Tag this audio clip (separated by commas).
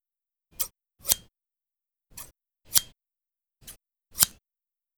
Scissors, home sounds